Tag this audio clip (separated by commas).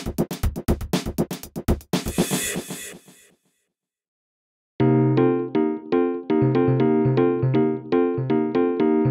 Music